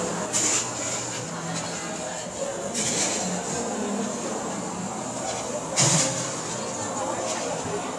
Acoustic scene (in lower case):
cafe